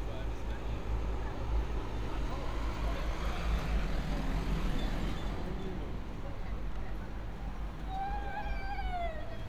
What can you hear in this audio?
large-sounding engine, person or small group talking, person or small group shouting